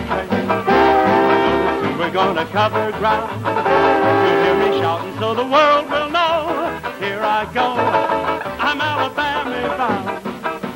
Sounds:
Musical instrument, Singing, Banjo, Song, Music

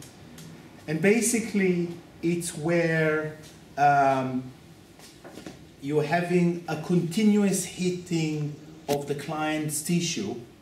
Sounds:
Speech

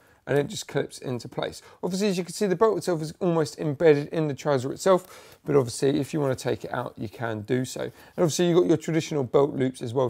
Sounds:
Speech

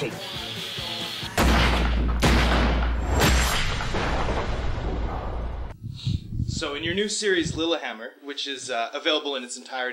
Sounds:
Gunshot

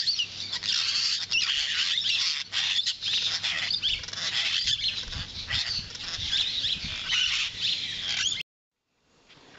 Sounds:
Speech, Animal

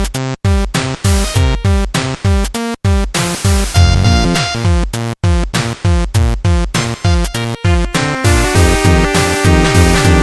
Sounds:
Music

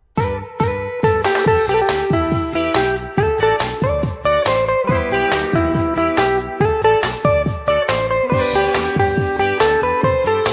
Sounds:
Pop music, Music, Funk

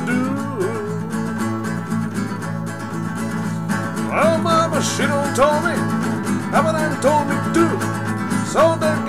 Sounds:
Strum, Guitar, Acoustic guitar, Plucked string instrument, Musical instrument, Music

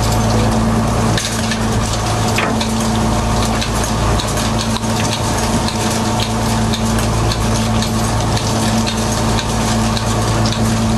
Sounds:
Vehicle, Water vehicle

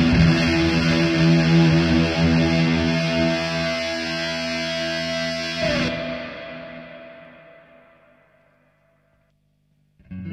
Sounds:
Music, Electric guitar, Musical instrument, Effects unit, Plucked string instrument, Guitar

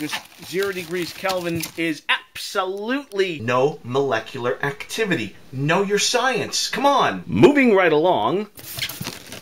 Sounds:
Speech

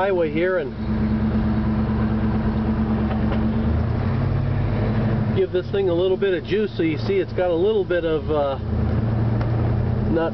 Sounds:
outside, urban or man-made, Vehicle, Engine, Medium engine (mid frequency), Speech

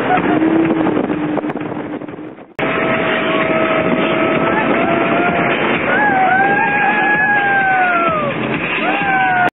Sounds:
Vehicle, Sailboat, Motorboat, Music, Boat

